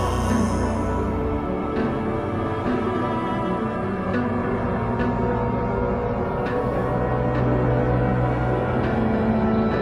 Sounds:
scary music, music

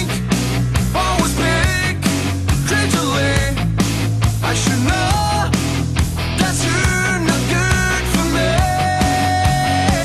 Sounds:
music

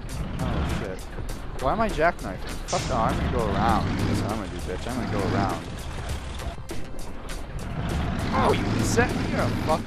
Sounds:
vehicle, speech, truck, music

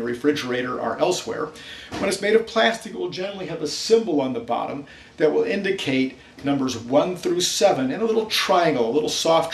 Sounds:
speech

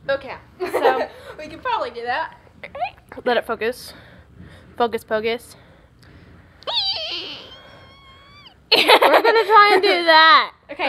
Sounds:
inside a small room, speech

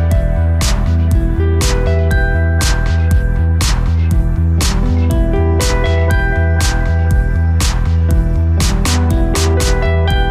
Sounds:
techno, music

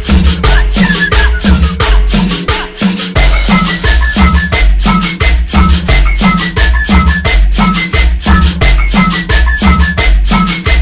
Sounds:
music

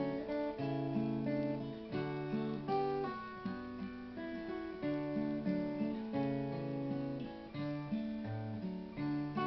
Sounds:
music

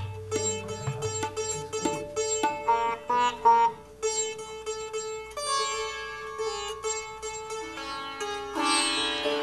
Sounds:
music, sitar

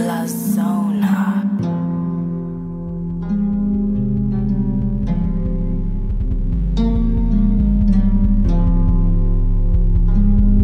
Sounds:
music

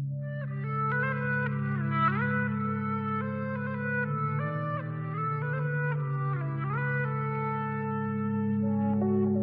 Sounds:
strum, plucked string instrument, music, guitar, electric guitar, musical instrument

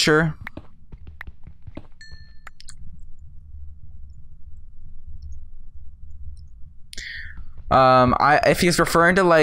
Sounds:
inside a small room, speech

